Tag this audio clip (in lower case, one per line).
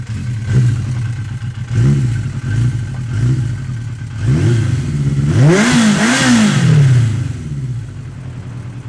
vroom
vehicle
engine
motorcycle
motor vehicle (road)